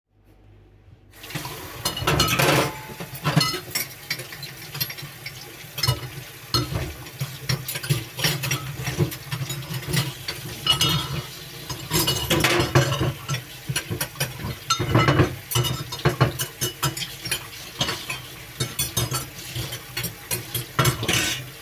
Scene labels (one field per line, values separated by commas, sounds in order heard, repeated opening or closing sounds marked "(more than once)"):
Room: kitchen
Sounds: cutlery and dishes, running water